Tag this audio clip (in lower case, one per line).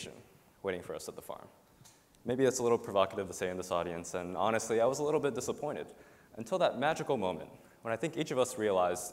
speech